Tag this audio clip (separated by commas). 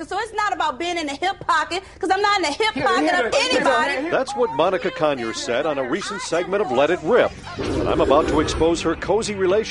Music, Speech